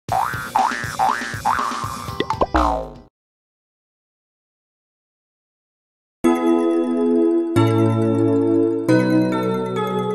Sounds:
music for children

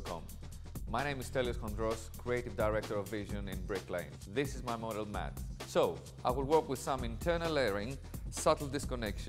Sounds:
music
speech

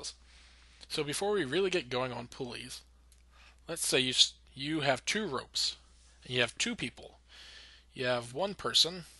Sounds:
speech

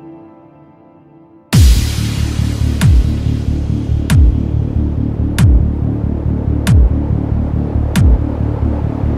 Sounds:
music

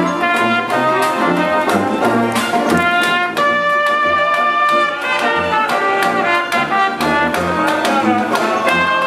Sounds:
playing cornet

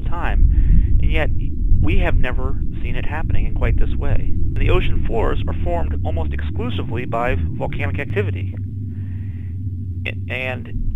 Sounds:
volcano explosion

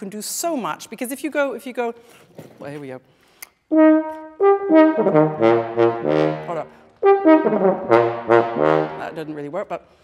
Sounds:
playing french horn

